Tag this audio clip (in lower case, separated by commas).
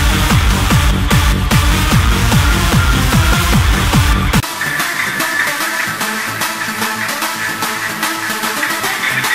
electronic dance music, music